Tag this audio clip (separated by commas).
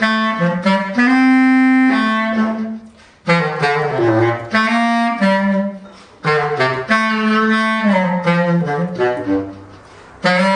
playing clarinet